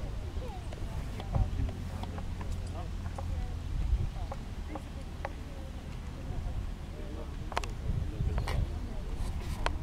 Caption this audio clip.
A group of people are speaking and there is a clip-clop sound